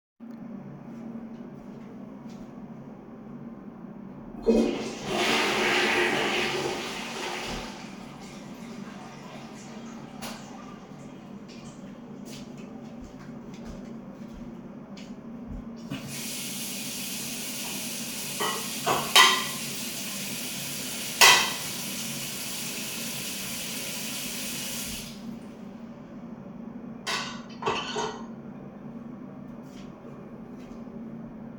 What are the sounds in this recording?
toilet flushing, light switch, footsteps, running water, cutlery and dishes